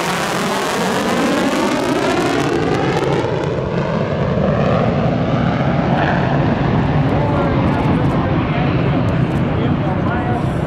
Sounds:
airplane flyby

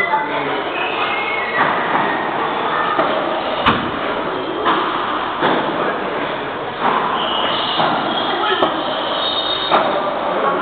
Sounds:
speech

